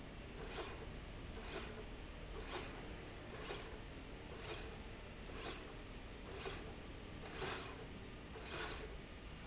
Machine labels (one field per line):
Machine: slide rail